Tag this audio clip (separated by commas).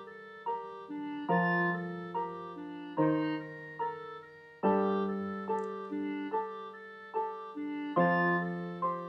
Keyboard (musical), Piano